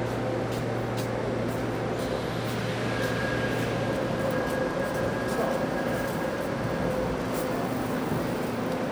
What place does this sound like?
subway station